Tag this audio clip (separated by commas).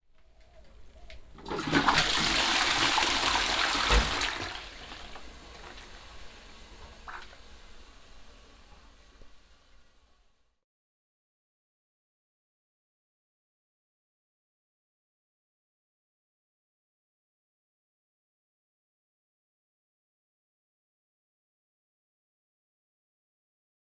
Bathtub (filling or washing), Domestic sounds